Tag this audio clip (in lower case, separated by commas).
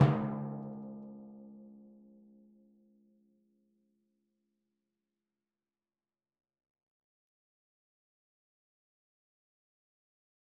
musical instrument, music, percussion, drum